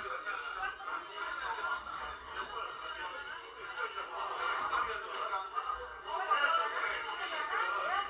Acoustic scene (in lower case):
crowded indoor space